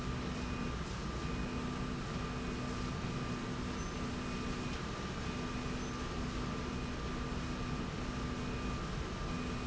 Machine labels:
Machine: slide rail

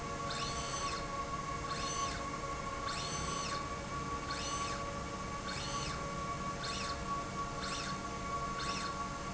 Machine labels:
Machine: slide rail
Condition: normal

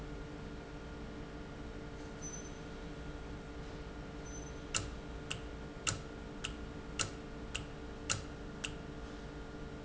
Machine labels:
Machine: valve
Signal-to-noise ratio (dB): 0 dB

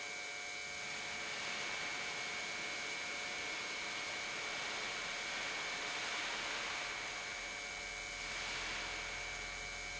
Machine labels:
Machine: pump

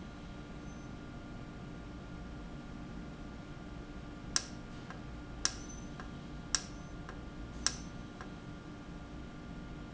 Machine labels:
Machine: valve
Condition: normal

